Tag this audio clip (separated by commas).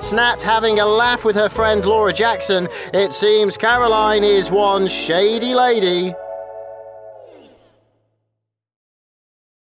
Speech, Music